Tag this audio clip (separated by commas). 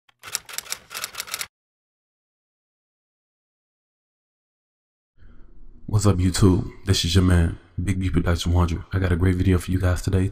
Speech